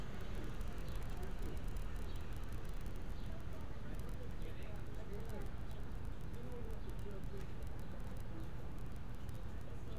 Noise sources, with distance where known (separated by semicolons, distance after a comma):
person or small group talking, far